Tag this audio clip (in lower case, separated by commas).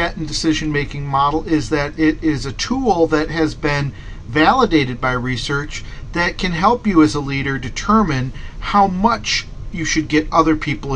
speech